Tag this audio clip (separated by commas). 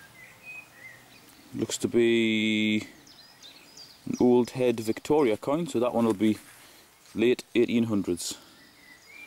outside, rural or natural, Speech, Bird vocalization